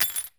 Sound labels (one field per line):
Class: object falling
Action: being thrown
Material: metal